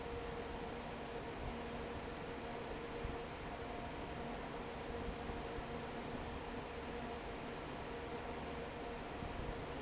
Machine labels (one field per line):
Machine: fan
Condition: normal